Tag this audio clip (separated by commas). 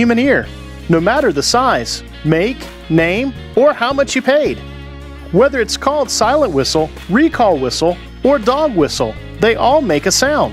Music, Speech